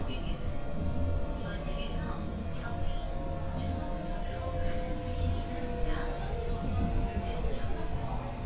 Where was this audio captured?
on a subway train